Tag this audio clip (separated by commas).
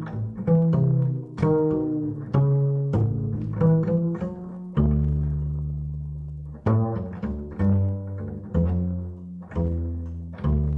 playing double bass